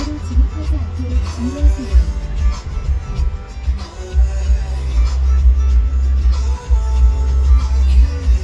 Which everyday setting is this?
car